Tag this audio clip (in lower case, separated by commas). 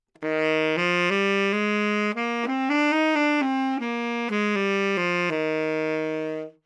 musical instrument, music, woodwind instrument